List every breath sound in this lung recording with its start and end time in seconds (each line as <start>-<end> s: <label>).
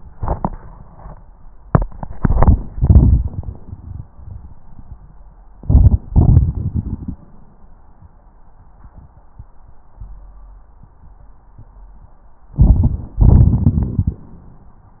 5.60-6.03 s: inhalation
6.08-7.21 s: exhalation
6.12-7.20 s: crackles
12.55-13.15 s: crackles
12.55-13.18 s: inhalation
13.18-14.27 s: exhalation
13.18-14.27 s: crackles